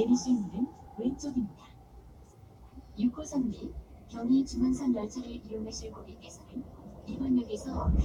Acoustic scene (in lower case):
subway train